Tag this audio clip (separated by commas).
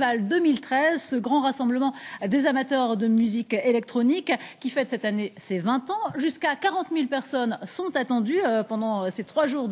Speech